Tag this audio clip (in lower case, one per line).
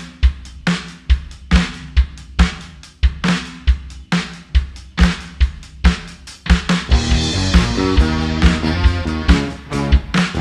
playing bass drum